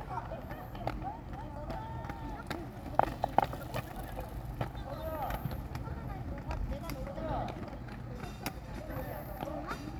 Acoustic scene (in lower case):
park